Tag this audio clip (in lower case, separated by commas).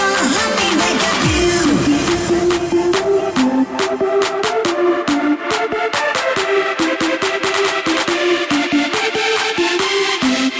music